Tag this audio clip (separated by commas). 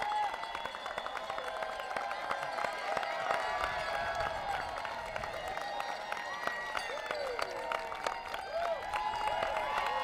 Speech